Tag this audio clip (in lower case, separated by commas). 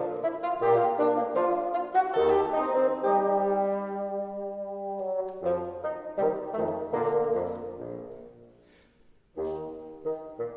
playing bassoon